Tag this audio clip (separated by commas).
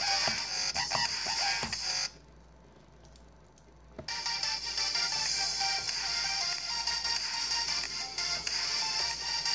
Music, inside a small room